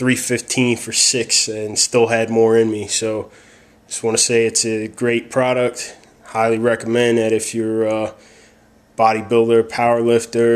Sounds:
Speech

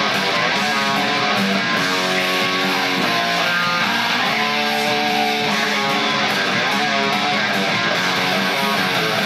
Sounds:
Music, Guitar, Electric guitar, Musical instrument

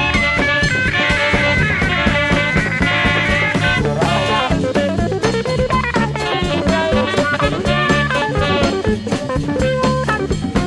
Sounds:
Swing music, Music

